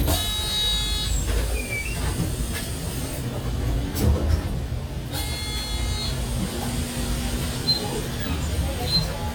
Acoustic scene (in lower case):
bus